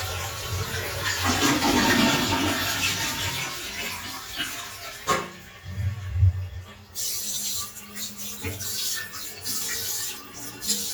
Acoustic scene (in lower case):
restroom